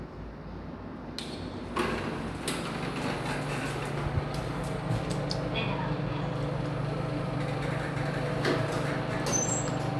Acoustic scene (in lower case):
elevator